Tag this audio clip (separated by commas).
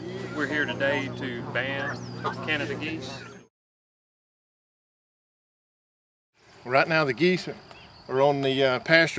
Speech